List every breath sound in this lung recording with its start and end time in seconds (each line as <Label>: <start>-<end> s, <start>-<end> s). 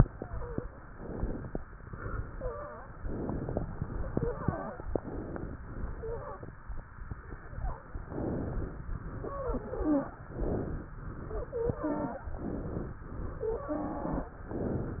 Inhalation: 0.89-1.56 s, 3.00-3.66 s, 4.93-5.64 s, 8.06-8.92 s, 10.32-10.97 s, 12.39-13.04 s
Exhalation: 1.78-2.49 s, 3.68-4.38 s, 5.71-6.55 s, 9.20-10.17 s, 11.04-12.30 s, 13.07-14.33 s
Wheeze: 0.00-0.65 s, 0.00-0.65 s, 2.24-2.90 s, 4.12-4.82 s, 5.98-6.57 s, 9.20-10.17 s, 11.38-12.35 s, 13.49-14.33 s